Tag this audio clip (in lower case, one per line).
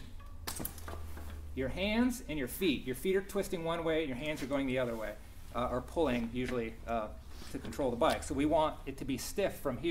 vehicle
bicycle
speech